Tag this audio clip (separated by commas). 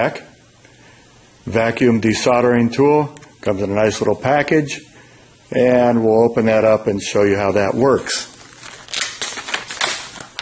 Speech